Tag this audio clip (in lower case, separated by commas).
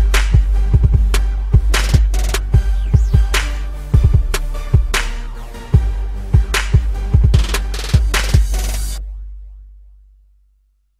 hip hop music, music